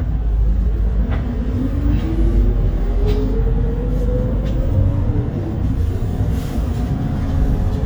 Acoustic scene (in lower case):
bus